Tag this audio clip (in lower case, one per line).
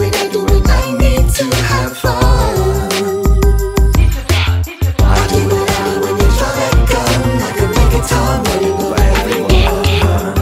music